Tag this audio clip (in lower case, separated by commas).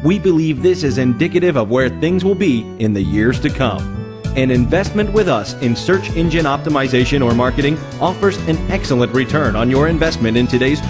speech, music